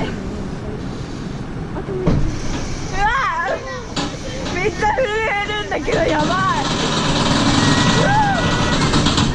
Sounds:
roller coaster running

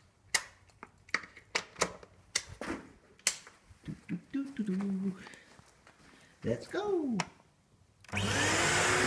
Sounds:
vacuum cleaner
speech

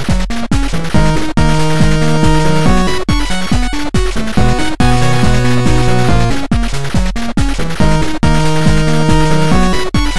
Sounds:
music
video game music

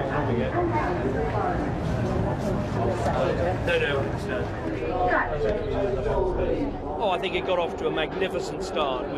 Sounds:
speech
vehicle

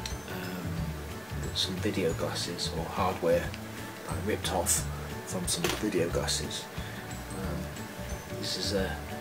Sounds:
speech
music

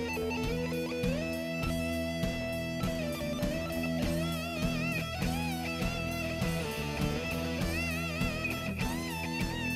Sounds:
music

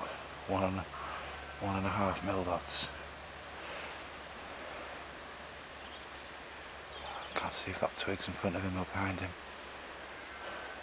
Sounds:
animal
speech

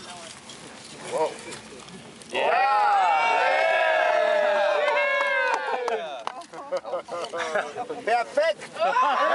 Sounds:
speech

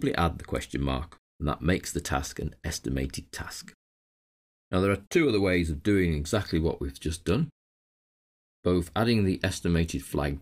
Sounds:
speech
narration

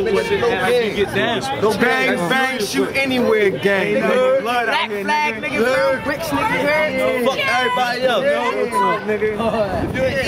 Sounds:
speech

